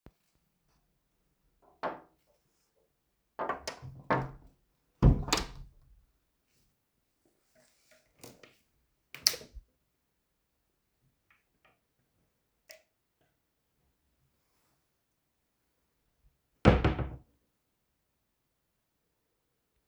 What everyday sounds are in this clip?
door, wardrobe or drawer, light switch